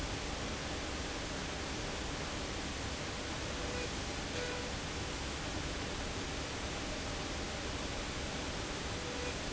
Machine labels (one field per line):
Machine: slide rail